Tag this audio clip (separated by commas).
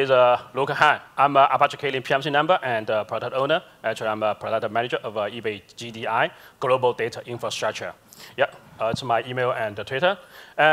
Speech